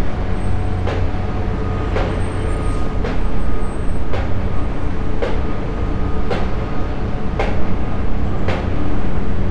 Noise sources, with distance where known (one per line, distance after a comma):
unidentified impact machinery, near